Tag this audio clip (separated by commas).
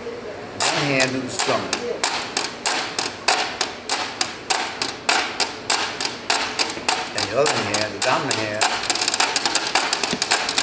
playing washboard